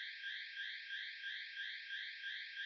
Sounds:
alarm

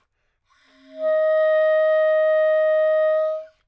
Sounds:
music, woodwind instrument, musical instrument

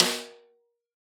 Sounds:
musical instrument, music, percussion, drum, snare drum

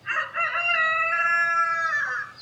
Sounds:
fowl, rooster, livestock, animal

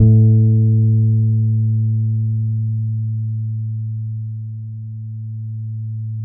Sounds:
bass guitar, plucked string instrument, musical instrument, music, guitar

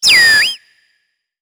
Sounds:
animal

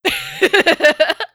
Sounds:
human voice, laughter

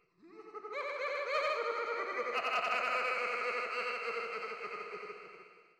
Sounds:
laughter, human voice

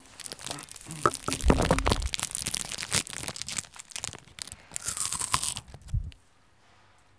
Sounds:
chewing

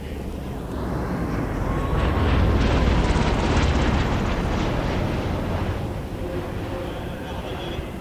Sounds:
aircraft, vehicle

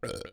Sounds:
eructation

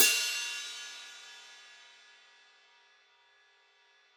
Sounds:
music, hi-hat, percussion, cymbal, musical instrument

